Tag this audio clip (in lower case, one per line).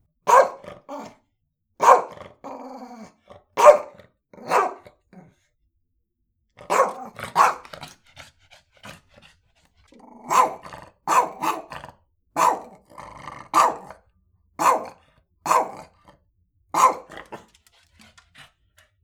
animal
growling